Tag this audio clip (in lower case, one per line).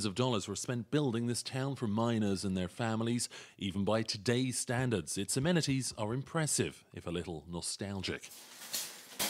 speech